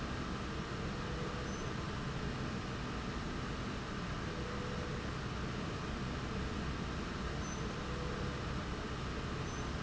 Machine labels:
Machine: slide rail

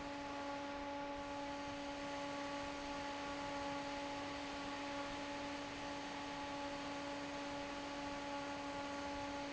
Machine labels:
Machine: fan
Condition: normal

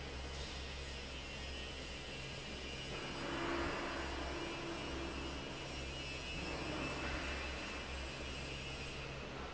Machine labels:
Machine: fan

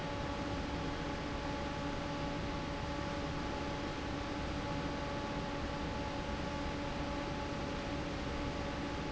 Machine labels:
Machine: fan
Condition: normal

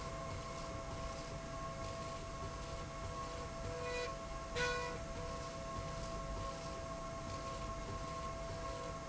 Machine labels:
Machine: slide rail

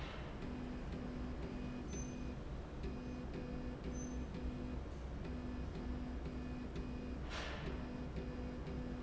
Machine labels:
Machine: slide rail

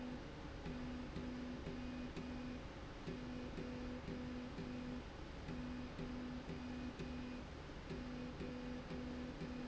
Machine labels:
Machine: slide rail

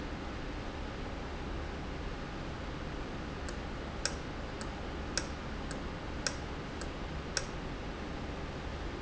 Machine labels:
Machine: valve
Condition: normal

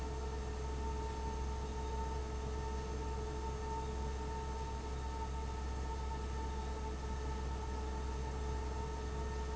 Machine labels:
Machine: fan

